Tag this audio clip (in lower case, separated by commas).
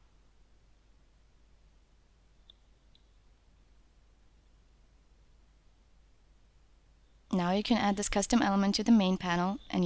speech